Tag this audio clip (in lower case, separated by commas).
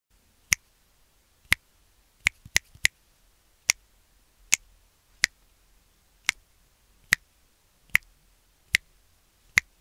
people finger snapping